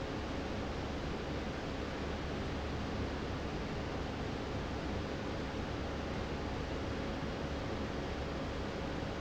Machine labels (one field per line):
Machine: fan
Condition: abnormal